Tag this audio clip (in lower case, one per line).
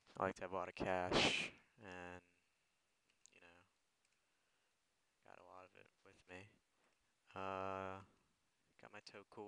speech